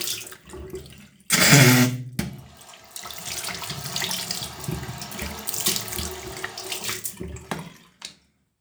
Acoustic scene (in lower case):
restroom